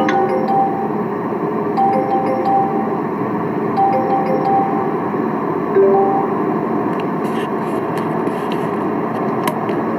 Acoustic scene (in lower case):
car